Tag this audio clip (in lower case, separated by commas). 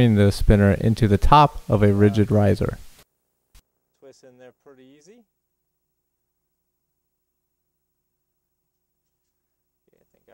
speech